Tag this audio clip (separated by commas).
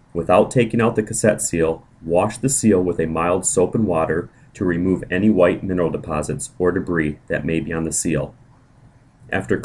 Speech